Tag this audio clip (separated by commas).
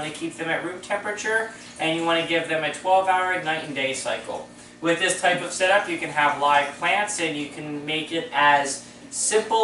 Speech